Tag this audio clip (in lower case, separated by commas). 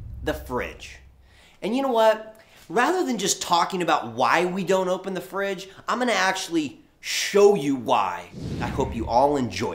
speech